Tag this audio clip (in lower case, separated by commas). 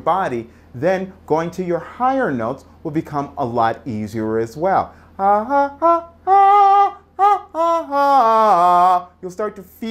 singing, speech